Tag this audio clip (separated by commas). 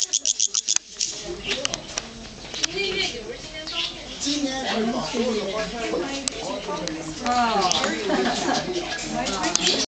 Speech